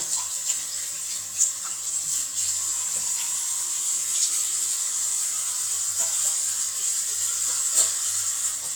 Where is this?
in a restroom